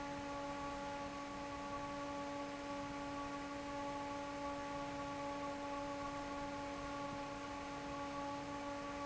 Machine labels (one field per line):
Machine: fan